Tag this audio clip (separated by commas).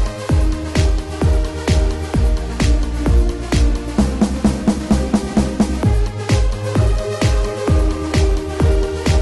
Music